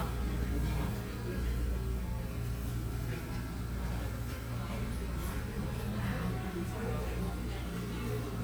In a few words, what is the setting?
cafe